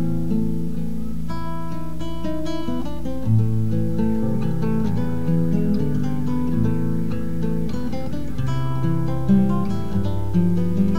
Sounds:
Guitar, Music, Acoustic guitar, Musical instrument, Strum, Plucked string instrument

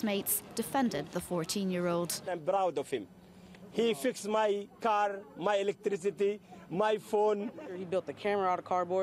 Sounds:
Speech

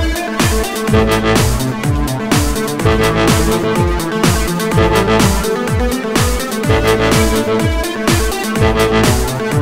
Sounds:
Dubstep, Music, Electronic music

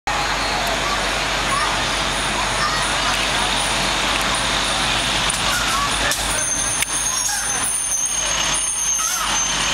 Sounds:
Speech, Vehicle

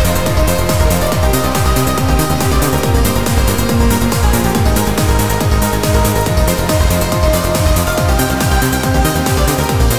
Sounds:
Techno, Trance music, Music

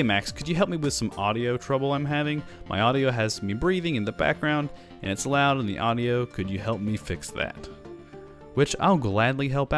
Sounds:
Speech, Music

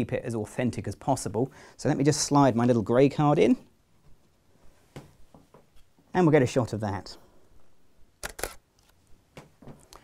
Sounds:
Speech, inside a small room

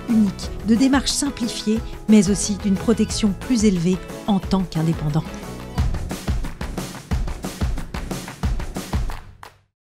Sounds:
Music, Speech

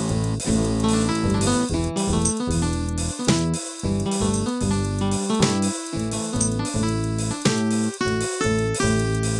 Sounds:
Music

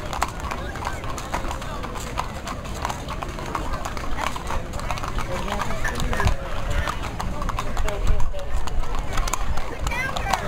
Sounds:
Speech

